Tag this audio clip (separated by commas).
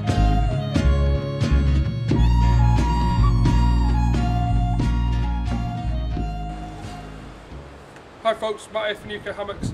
Music, Speech